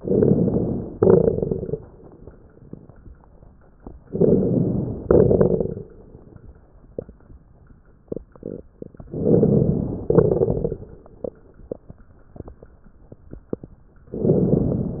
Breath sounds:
0.00-0.88 s: inhalation
0.00-0.89 s: crackles
0.93-1.82 s: exhalation
0.93-1.82 s: crackles
4.12-5.01 s: inhalation
4.12-5.01 s: crackles
5.10-5.92 s: exhalation
5.10-5.92 s: crackles
9.09-10.02 s: inhalation
9.09-10.02 s: crackles
10.09-10.94 s: exhalation
10.09-10.94 s: crackles
14.15-15.00 s: inhalation
14.15-15.00 s: crackles

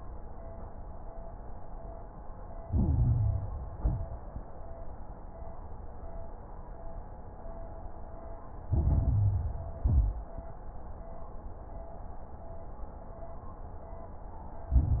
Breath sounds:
2.64-3.68 s: inhalation
2.64-3.68 s: crackles
3.76-4.28 s: exhalation
3.76-4.28 s: crackles
8.68-9.78 s: inhalation
8.68-9.78 s: crackles
9.80-10.32 s: exhalation
9.80-10.32 s: crackles
14.73-15.00 s: inhalation
14.73-15.00 s: crackles

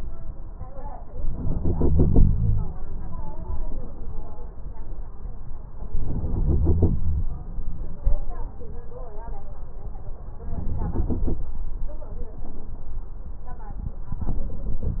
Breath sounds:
1.36-2.73 s: inhalation
5.96-7.30 s: inhalation
10.43-11.47 s: inhalation
14.13-15.00 s: inhalation
14.13-15.00 s: crackles

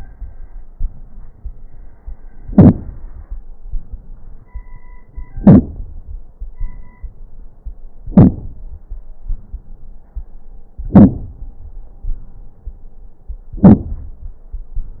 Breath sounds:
0.72-1.62 s: inhalation
2.49-2.83 s: exhalation
2.49-2.83 s: crackles
3.65-4.63 s: inhalation
5.39-5.75 s: exhalation
5.39-5.75 s: crackles
6.60-7.45 s: inhalation
8.11-8.50 s: exhalation
8.11-8.50 s: crackles
9.27-10.17 s: inhalation
10.89-11.40 s: exhalation
10.89-11.40 s: crackles
12.07-12.88 s: inhalation
13.58-14.20 s: exhalation
13.58-14.20 s: crackles

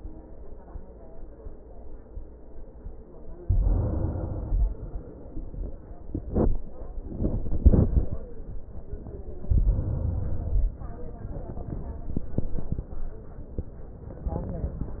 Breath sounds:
3.41-4.64 s: inhalation
4.62-5.84 s: exhalation
9.50-10.73 s: inhalation
10.76-11.98 s: exhalation

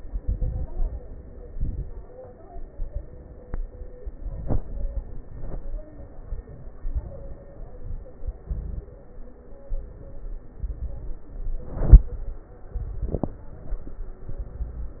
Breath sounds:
0.00-0.68 s: crackles
0.00-0.70 s: inhalation
0.74-1.10 s: exhalation
0.74-1.10 s: crackles
1.50-2.20 s: inhalation
1.50-2.20 s: crackles
4.20-4.94 s: inhalation
4.20-4.94 s: crackles
6.74-7.41 s: inhalation
6.74-7.41 s: crackles
8.44-8.99 s: inhalation
8.44-8.99 s: crackles
10.64-11.31 s: inhalation
10.64-11.31 s: crackles
12.77-13.44 s: inhalation
12.77-13.44 s: crackles
14.33-14.99 s: inhalation
14.33-14.99 s: crackles

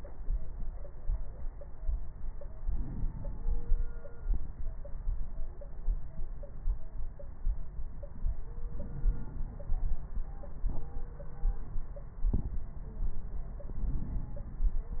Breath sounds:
2.61-4.03 s: inhalation
8.63-9.98 s: inhalation
13.77-15.00 s: inhalation

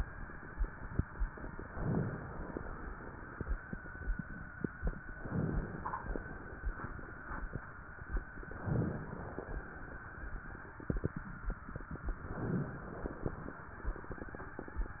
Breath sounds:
1.59-2.52 s: inhalation
5.19-6.11 s: inhalation
8.50-9.43 s: inhalation
12.35-13.40 s: inhalation

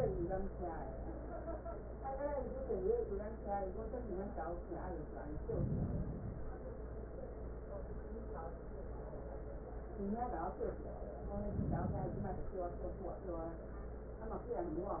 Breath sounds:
5.20-6.64 s: inhalation
11.27-12.71 s: inhalation

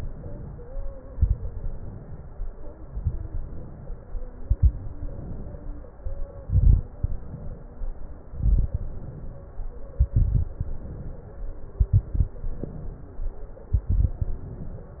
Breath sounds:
0.00-0.80 s: inhalation
0.89-1.56 s: exhalation
0.89-1.56 s: crackles
1.63-2.43 s: inhalation
2.60-3.27 s: exhalation
2.60-3.27 s: crackles
3.31-4.10 s: inhalation
4.22-4.89 s: exhalation
4.22-4.89 s: crackles
5.04-5.83 s: inhalation
6.27-6.94 s: exhalation
6.27-6.94 s: crackles
7.01-7.81 s: inhalation
8.11-8.79 s: exhalation
8.11-8.79 s: crackles
8.80-9.59 s: inhalation
9.90-10.57 s: exhalation
9.90-10.57 s: crackles
10.62-11.42 s: inhalation
11.72-12.40 s: exhalation
11.72-12.40 s: crackles
12.45-13.24 s: inhalation
13.59-14.16 s: exhalation
13.59-14.16 s: crackles
14.23-15.00 s: inhalation

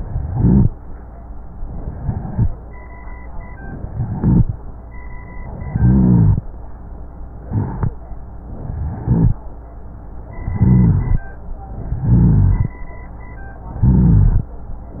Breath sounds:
0.00-0.70 s: inhalation
0.00-0.70 s: rhonchi
1.78-2.49 s: inhalation
1.78-2.49 s: rhonchi
3.83-4.54 s: inhalation
3.83-4.54 s: rhonchi
5.56-6.40 s: inhalation
5.56-6.40 s: rhonchi
7.44-8.03 s: inhalation
7.44-8.03 s: rhonchi
8.57-9.39 s: inhalation
8.57-9.39 s: rhonchi
10.44-11.27 s: inhalation
10.44-11.27 s: rhonchi
11.91-12.75 s: inhalation
11.91-12.75 s: rhonchi
13.81-14.52 s: inhalation
13.81-14.52 s: rhonchi

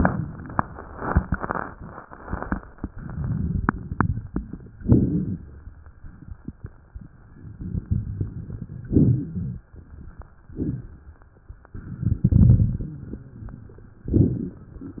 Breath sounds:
2.84-4.73 s: inhalation
2.84-4.73 s: crackles
4.75-6.86 s: exhalation
4.75-6.86 s: crackles
6.87-8.59 s: inhalation
6.88-8.55 s: crackles
8.58-10.29 s: exhalation
10.34-11.66 s: crackles
10.34-11.67 s: inhalation
11.69-14.05 s: exhalation
12.76-14.05 s: wheeze
14.06-15.00 s: crackles

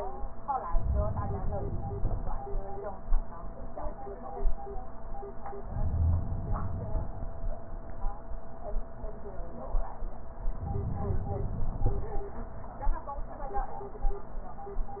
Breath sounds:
0.78-2.28 s: inhalation
5.67-7.17 s: inhalation
5.83-6.32 s: wheeze
10.61-12.11 s: inhalation

